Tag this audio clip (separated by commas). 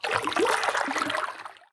Stream, Water